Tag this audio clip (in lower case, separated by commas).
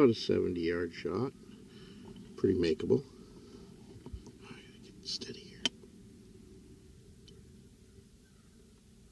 speech